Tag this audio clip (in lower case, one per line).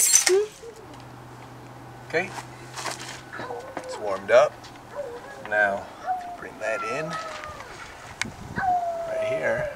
speech